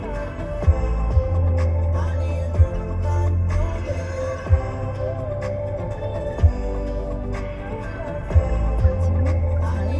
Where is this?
in a car